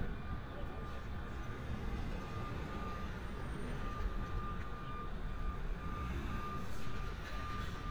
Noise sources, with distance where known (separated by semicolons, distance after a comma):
unidentified alert signal